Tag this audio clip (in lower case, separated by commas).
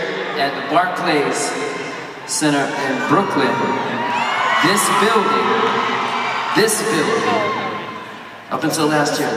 monologue, man speaking, speech